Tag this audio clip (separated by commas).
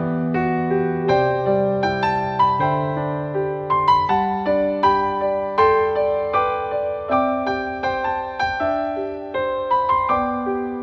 Music